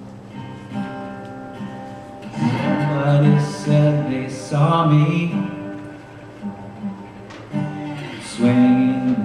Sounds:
guitar, music, strum, musical instrument, plucked string instrument, acoustic guitar

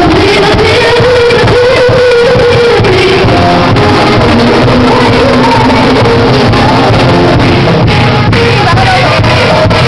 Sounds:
music

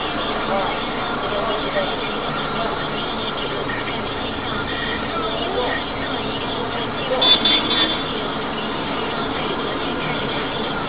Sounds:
speech

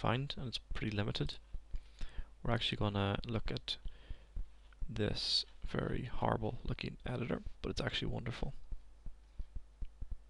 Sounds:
speech

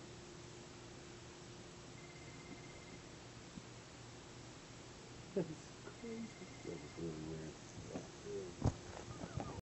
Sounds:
speech

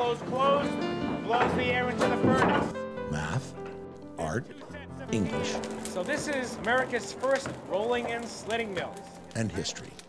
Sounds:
speech, music

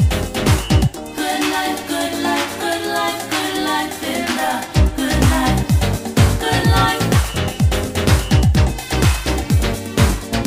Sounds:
funk, disco

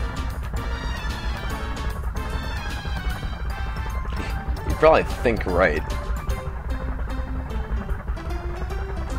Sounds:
music, speech

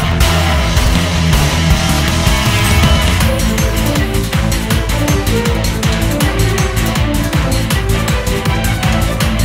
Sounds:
music

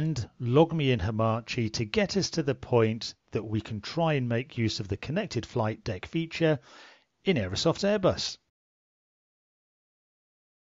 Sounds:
speech

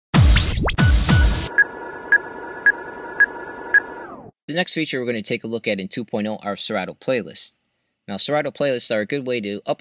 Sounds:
speech, scratching (performance technique), music, scratch

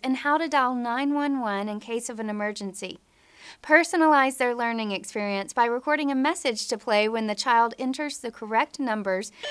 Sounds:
speech, telephone bell ringing

